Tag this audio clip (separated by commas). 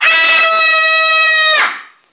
Human voice, Screaming